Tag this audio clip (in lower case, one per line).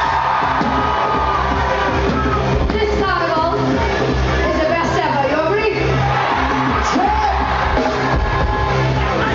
speech
music